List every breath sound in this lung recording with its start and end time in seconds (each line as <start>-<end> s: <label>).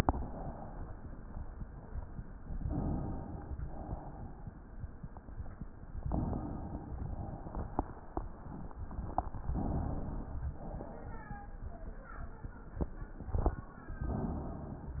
2.61-3.51 s: inhalation
3.51-4.46 s: exhalation
6.08-7.03 s: inhalation
7.09-8.13 s: exhalation
9.52-10.54 s: inhalation
10.58-11.59 s: exhalation
13.94-14.96 s: inhalation